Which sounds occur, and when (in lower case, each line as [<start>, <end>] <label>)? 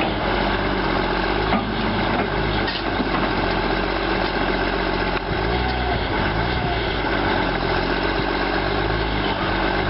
[0.00, 9.85] heavy engine (low frequency)
[0.00, 9.85] wind
[5.04, 5.17] tick